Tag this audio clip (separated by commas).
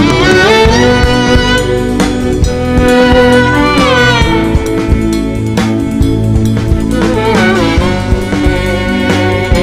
Music, Carnatic music